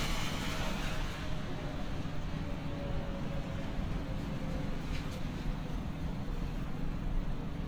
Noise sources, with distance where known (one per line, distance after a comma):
small-sounding engine